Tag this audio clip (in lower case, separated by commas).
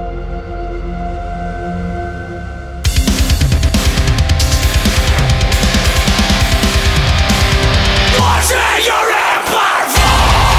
music